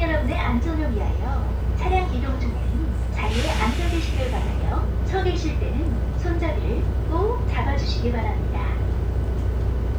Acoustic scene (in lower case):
bus